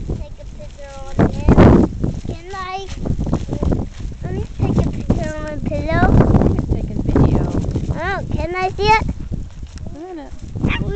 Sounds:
speech

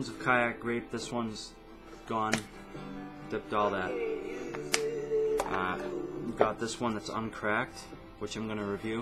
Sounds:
speech, music

